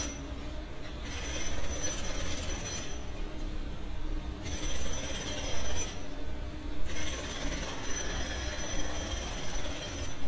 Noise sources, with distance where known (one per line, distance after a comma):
jackhammer, near